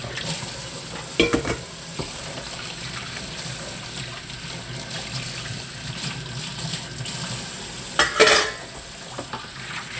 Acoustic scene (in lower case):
kitchen